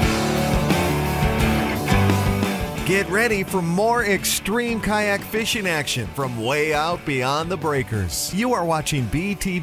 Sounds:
Music, Speech

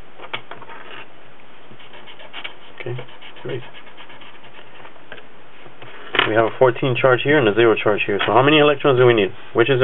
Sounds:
Speech

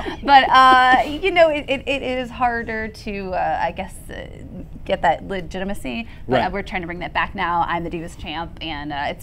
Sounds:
Speech

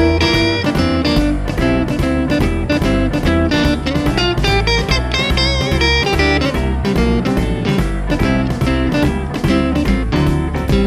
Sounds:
Plucked string instrument, Guitar, Musical instrument, Music

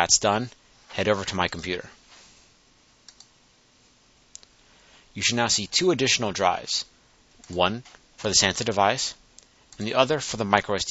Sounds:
Speech

